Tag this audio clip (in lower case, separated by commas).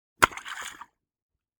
splatter, liquid